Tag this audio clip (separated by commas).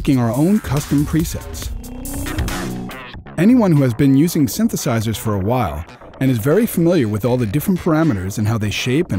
Speech, Music